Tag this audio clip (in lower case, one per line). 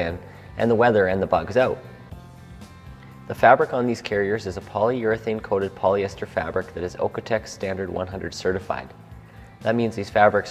speech
music